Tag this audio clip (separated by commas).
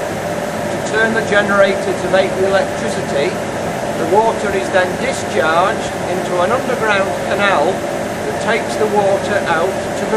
Speech